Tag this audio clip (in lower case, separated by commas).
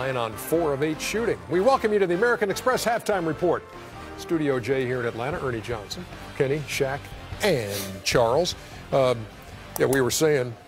speech, music